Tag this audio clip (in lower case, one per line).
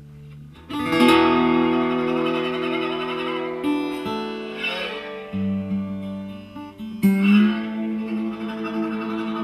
inside a large room or hall
music
plucked string instrument
musical instrument